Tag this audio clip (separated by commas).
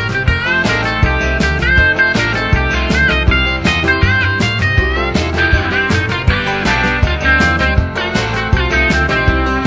Music, Soundtrack music